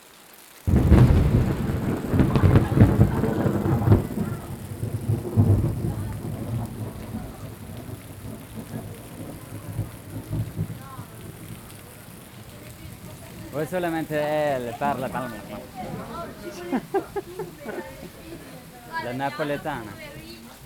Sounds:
Thunderstorm, Rain, Water, Thunder

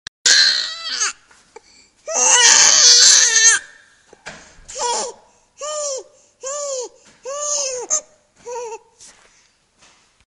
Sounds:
Human voice, Crying

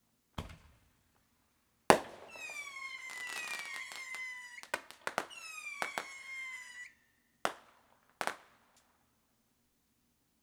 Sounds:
Explosion, Fireworks

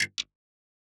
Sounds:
Mechanisms, Tick, Clock

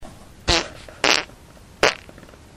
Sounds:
Fart

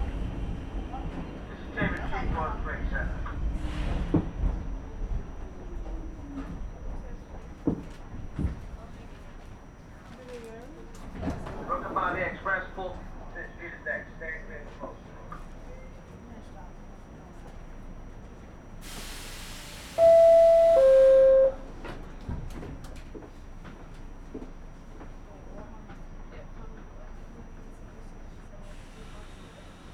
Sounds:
Vehicle, Rail transport, Subway

